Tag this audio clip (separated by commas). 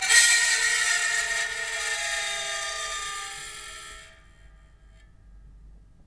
Screech